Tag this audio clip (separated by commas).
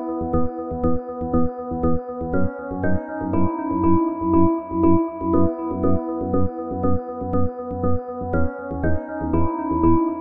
Synthesizer, Music, Techno, Electronic music